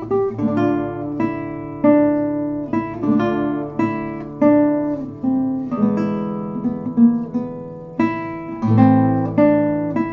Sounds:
Music, Acoustic guitar, Plucked string instrument, Guitar, Musical instrument

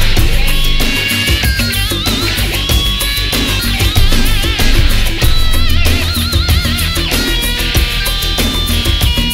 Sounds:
Music

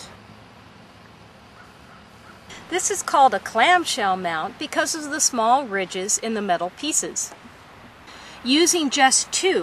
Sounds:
Speech

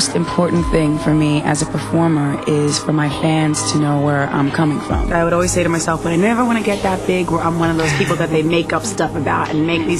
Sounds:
Speech, Music

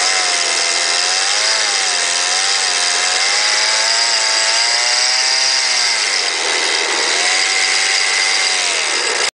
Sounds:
Accelerating, Engine

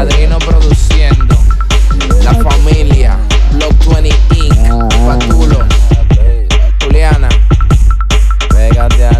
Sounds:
Music

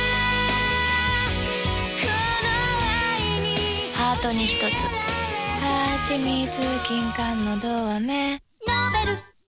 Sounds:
Music, Speech

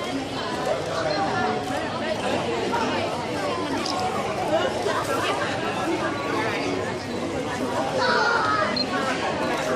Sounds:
Speech

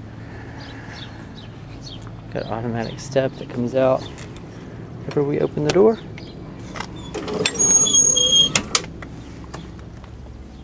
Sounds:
Speech

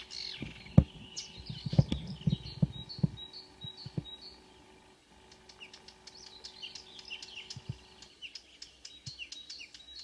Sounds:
Chirp, outside, rural or natural, bird chirping

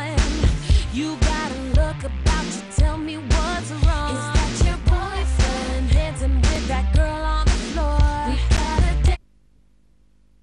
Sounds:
Music

